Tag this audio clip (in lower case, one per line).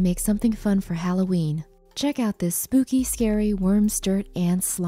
speech